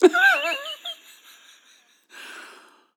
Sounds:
Human voice, Laughter

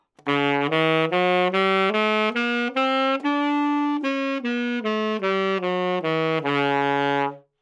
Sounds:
Musical instrument, Music, woodwind instrument

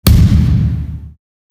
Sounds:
Thump

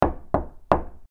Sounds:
home sounds, Door, Knock

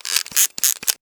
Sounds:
Camera, Mechanisms

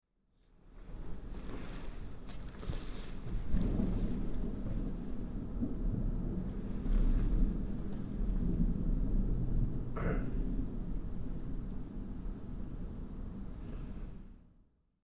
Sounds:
Thunder, Thunderstorm

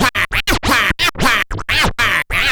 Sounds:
Music, Scratching (performance technique), Musical instrument

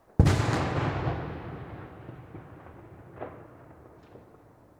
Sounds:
Fireworks, Boom, Explosion

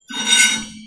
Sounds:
silverware, home sounds

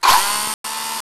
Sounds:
Drill, Power tool, Tools

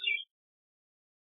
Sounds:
Bird, Animal, Wild animals

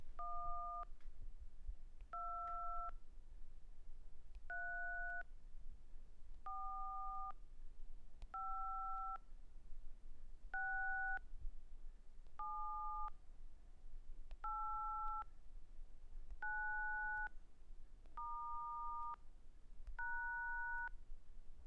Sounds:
Alarm, Telephone

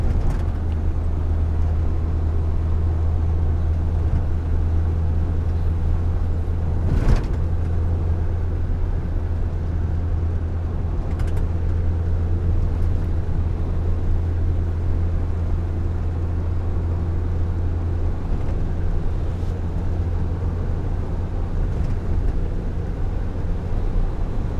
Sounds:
Truck, Vehicle, Motor vehicle (road)

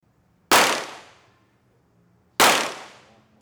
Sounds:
Explosion, Gunshot

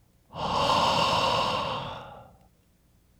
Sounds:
Respiratory sounds, Breathing

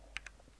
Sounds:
home sounds, Typing

